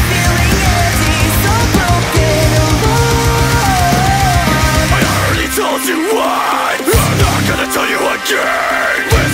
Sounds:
music

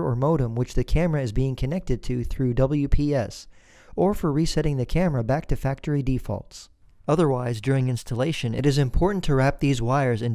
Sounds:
speech

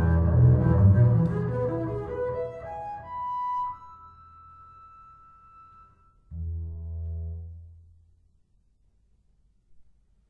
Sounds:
musical instrument
bowed string instrument
cello
music

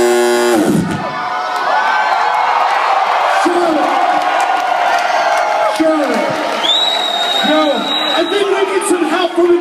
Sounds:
music
speech

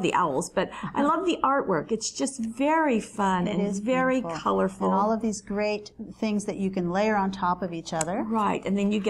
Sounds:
speech

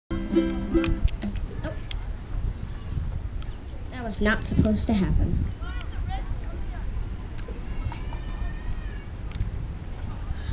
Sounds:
playing ukulele

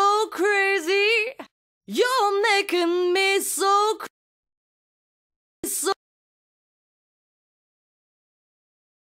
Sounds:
music

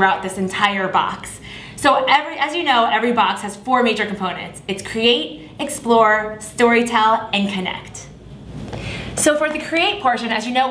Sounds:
speech

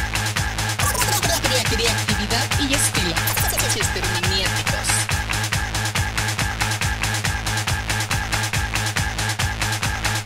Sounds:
speech
music
electronic music
techno

